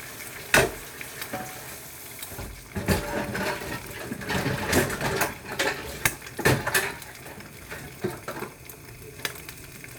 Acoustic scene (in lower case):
kitchen